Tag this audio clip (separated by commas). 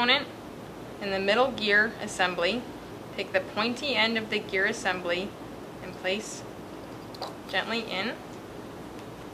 Speech